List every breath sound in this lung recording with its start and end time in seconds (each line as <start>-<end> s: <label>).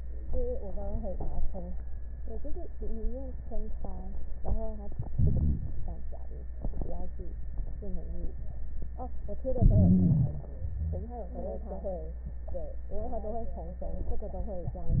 5.15-5.62 s: inhalation
9.61-10.49 s: inhalation